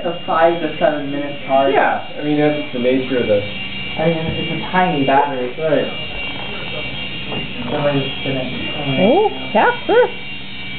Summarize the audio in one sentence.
two men speaking with vehicle sounds